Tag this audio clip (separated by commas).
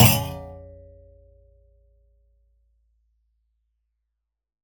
Thump